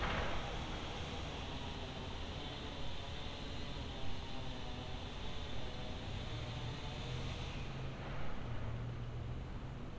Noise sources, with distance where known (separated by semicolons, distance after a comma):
unidentified powered saw, far